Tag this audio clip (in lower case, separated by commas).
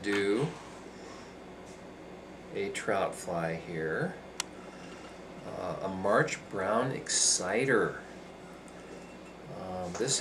inside a small room, speech